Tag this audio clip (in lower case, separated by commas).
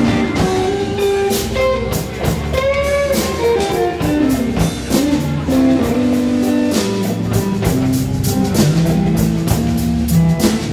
plucked string instrument, guitar, music, musical instrument